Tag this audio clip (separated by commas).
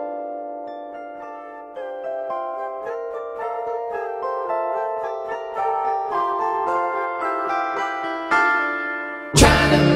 Music